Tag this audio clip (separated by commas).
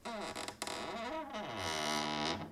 Cupboard open or close, Door, Squeak, Domestic sounds